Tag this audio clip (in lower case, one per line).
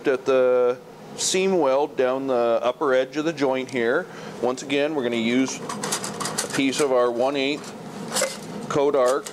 arc welding